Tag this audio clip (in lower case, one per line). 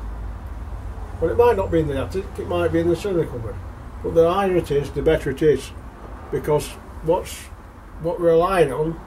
speech